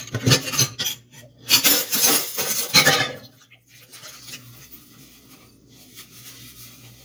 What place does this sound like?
kitchen